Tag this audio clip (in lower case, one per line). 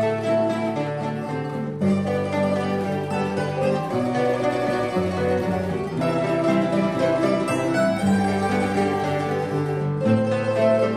mandolin
music